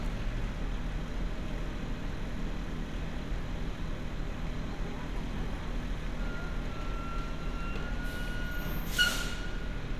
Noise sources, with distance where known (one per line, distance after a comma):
large-sounding engine, near